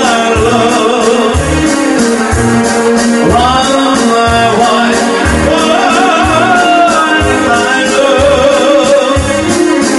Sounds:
Music, Male singing

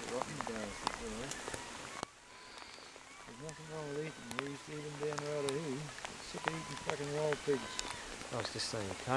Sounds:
Animal, Speech

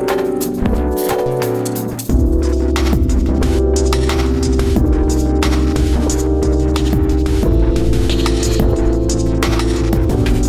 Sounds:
Music

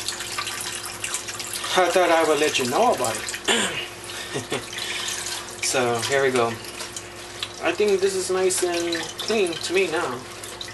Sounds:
Water, faucet

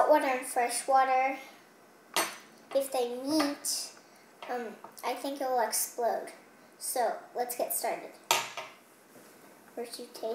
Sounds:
Speech

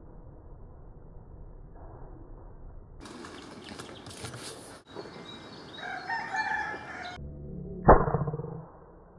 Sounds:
bird song, tweet, Bird

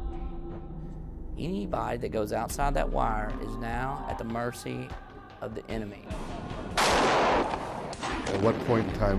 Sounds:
Music, Speech

